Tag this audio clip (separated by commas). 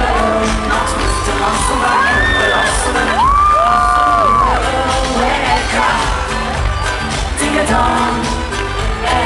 Pop music, Music